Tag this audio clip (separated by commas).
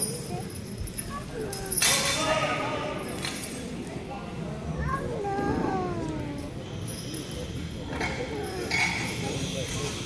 Speech